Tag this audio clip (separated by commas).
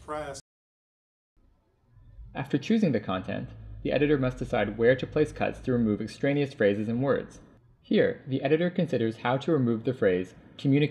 Speech